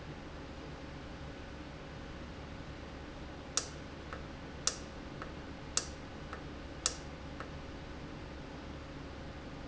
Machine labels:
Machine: valve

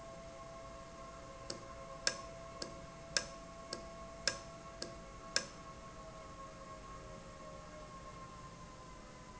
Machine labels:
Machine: valve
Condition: normal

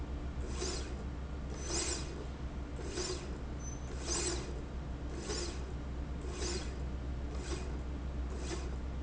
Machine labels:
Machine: slide rail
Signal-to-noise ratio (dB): -6 dB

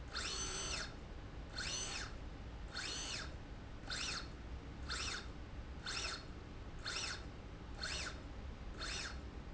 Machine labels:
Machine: slide rail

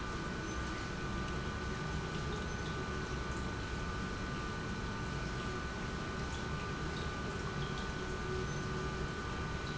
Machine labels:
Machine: pump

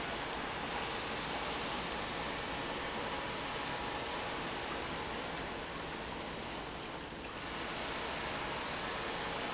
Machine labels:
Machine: pump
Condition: normal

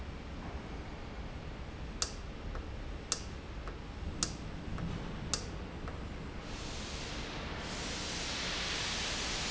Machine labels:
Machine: valve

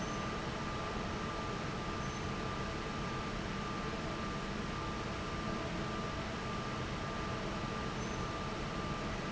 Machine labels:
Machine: fan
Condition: normal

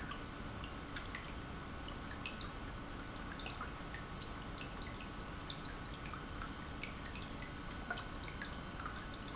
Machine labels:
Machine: pump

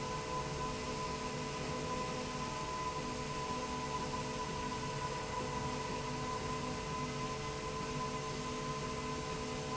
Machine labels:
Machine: slide rail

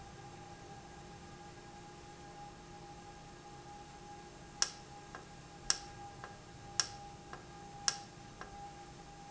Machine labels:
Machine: valve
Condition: normal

